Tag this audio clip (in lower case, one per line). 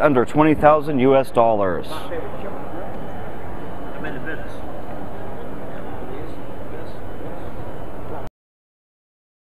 speech